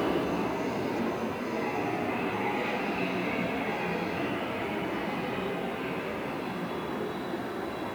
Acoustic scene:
subway station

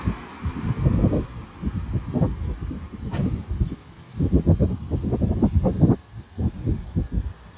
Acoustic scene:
street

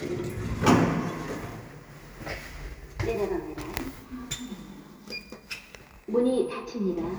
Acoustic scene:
elevator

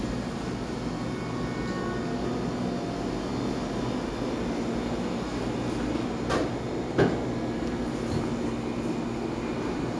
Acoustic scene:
cafe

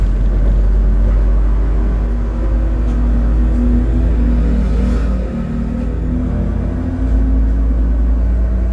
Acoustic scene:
bus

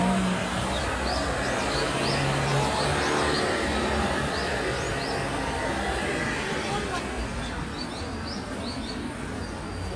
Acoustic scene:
residential area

